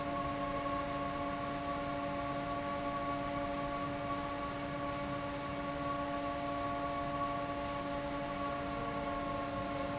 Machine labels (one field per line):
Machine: fan